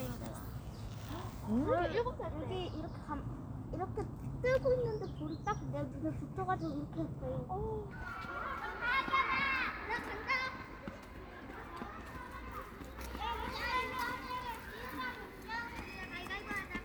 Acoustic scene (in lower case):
park